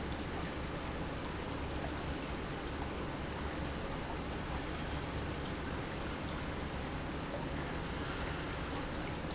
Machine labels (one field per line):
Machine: pump